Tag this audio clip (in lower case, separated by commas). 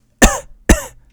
cough, respiratory sounds